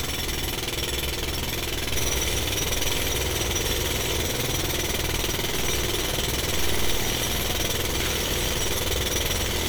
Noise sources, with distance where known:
jackhammer, near

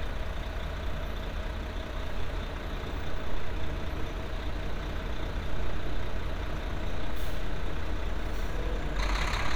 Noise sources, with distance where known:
large-sounding engine, near

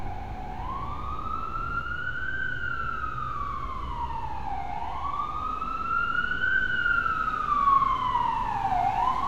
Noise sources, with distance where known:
siren, near

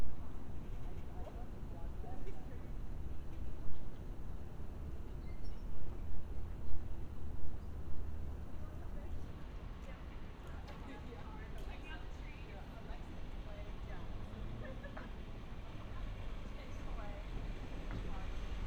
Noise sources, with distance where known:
background noise

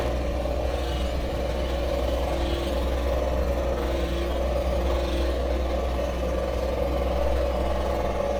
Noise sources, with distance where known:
jackhammer, near

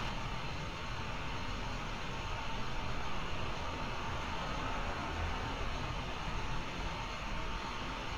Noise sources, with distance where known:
large-sounding engine

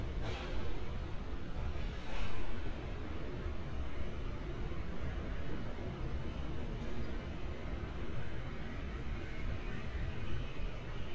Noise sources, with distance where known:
non-machinery impact

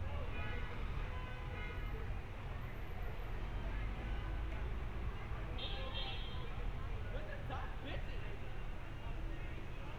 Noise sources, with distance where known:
car horn
person or small group talking, near

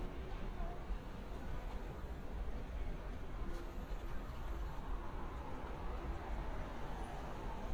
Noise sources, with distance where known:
engine of unclear size, far
unidentified human voice, far

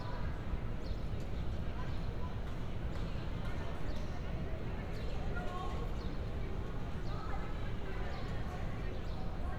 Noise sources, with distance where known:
person or small group talking, far

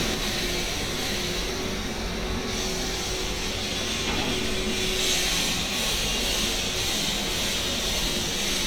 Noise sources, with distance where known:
unidentified impact machinery

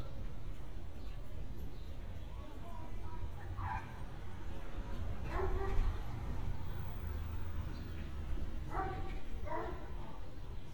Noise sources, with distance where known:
unidentified human voice, far
dog barking or whining, far

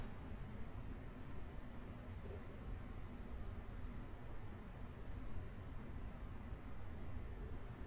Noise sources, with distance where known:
background noise

